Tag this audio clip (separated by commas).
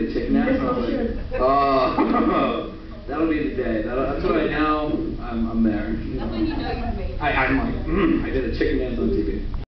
Speech